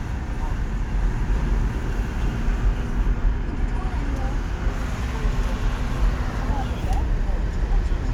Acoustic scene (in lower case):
car